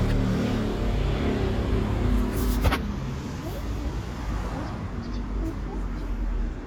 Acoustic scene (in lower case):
street